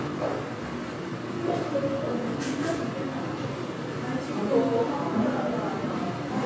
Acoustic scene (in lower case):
crowded indoor space